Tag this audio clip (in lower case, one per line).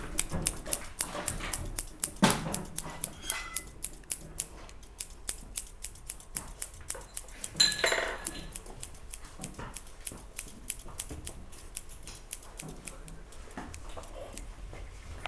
scissors
domestic sounds